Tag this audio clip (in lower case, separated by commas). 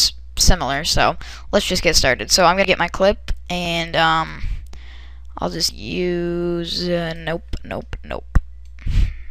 speech